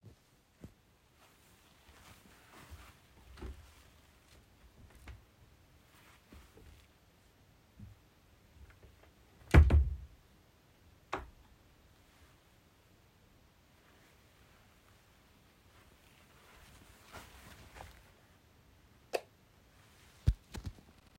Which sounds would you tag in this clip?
footsteps, wardrobe or drawer, light switch